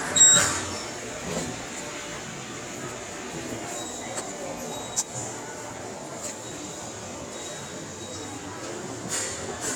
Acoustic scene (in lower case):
subway station